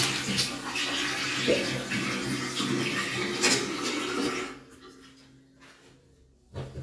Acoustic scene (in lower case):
restroom